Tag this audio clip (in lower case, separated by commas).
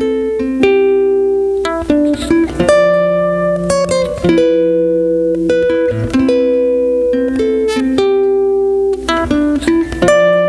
acoustic guitar, music, guitar, musical instrument, plucked string instrument, strum